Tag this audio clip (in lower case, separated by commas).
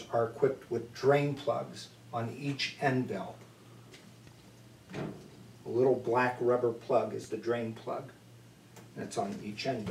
speech